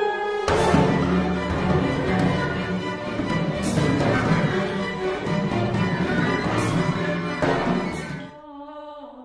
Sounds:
playing timpani

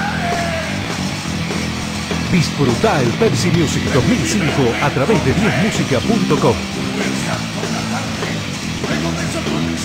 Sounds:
Music, Speech

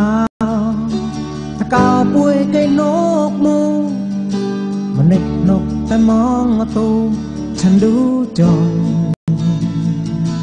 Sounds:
Music

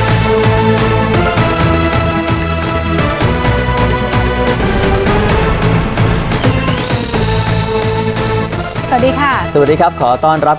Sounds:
Speech, Music

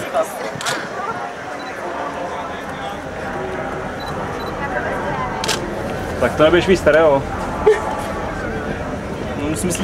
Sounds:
Speech

